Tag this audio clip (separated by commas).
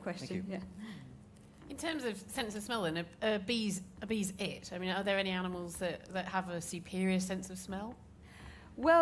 Female speech, Speech